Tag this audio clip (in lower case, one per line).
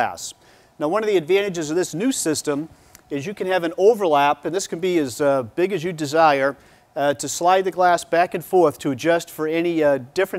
speech